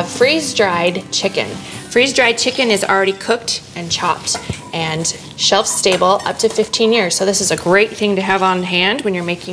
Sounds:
music, speech

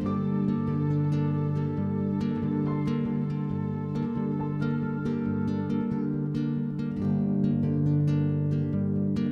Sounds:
music

